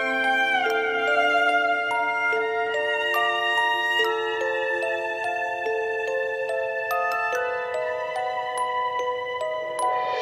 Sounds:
music

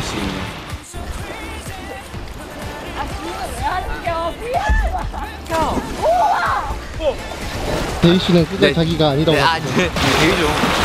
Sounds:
shot football

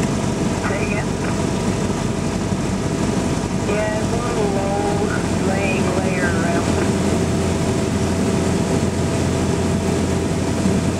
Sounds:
speech

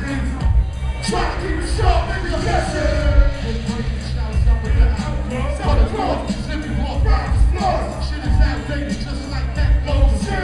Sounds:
music
dance music

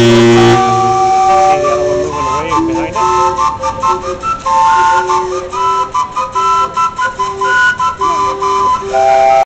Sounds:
steam whistle

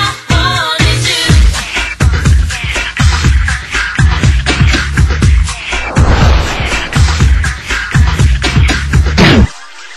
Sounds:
music

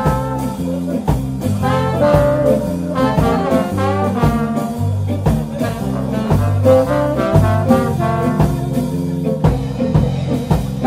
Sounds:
jazz
music
speech

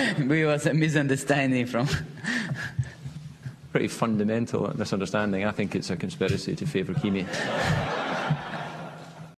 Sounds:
speech

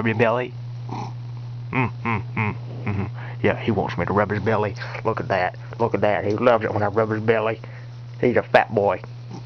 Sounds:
speech
animal
cat
domestic animals

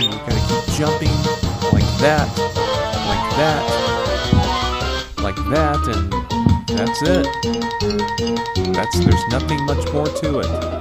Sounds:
music
speech

